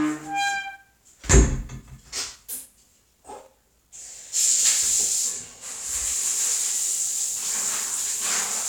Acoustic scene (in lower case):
restroom